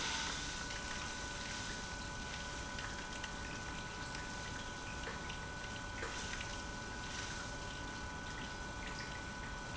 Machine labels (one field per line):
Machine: pump